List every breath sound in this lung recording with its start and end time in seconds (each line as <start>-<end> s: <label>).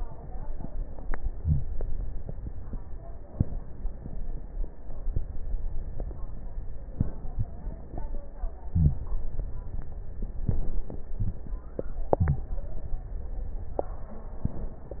1.29-1.75 s: inhalation
8.71-9.02 s: inhalation
12.18-12.48 s: inhalation